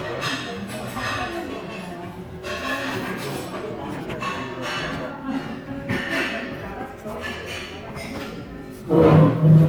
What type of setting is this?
crowded indoor space